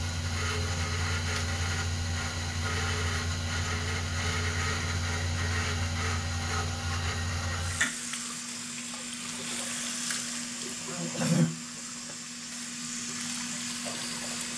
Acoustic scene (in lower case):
restroom